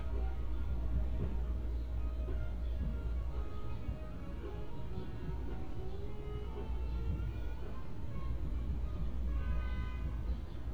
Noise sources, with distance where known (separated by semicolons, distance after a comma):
car horn, far; music from a fixed source, far